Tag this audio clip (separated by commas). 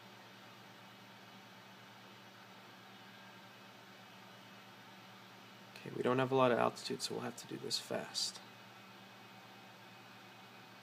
Speech